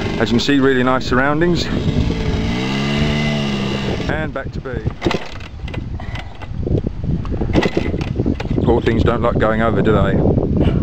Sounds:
speech
outside, rural or natural
motorcycle
vehicle

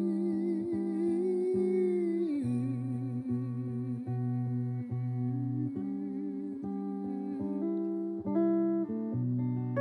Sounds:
acoustic guitar
music

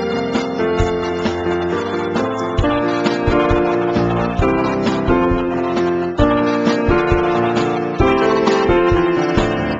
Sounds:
music

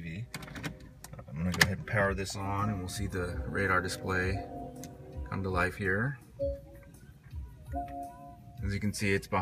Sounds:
music
speech

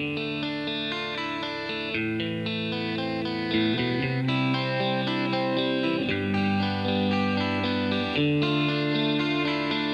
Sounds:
music

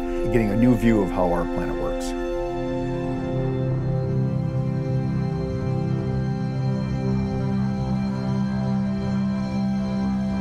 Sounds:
music
speech

